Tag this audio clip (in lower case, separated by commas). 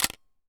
camera, mechanisms